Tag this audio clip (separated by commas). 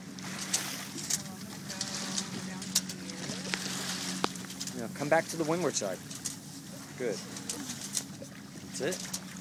Boat, Vehicle, sailing ship, Speech